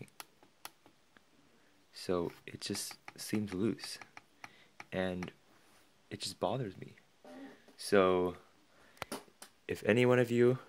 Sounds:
Speech

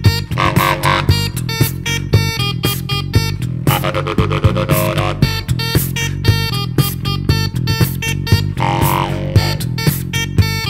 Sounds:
Dubstep, Electronic music, Music

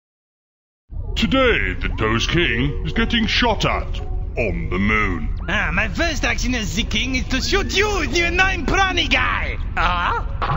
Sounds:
Music, Speech

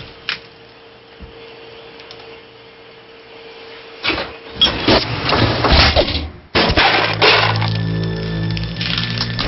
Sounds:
Music

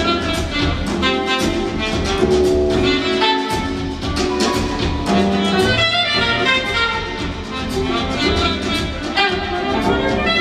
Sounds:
playing saxophone

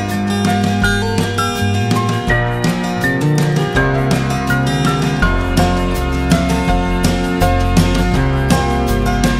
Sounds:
Music

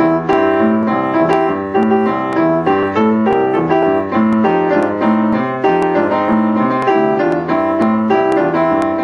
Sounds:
Music

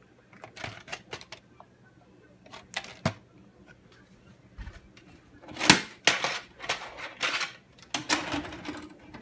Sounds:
inside a small room

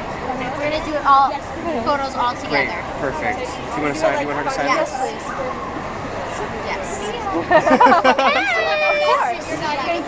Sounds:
Speech

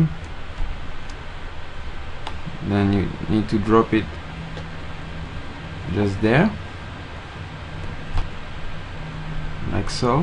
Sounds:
Speech

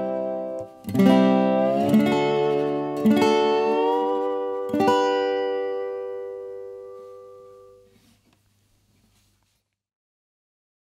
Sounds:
slide guitar

